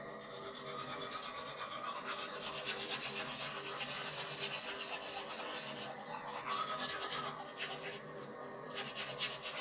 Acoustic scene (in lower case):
restroom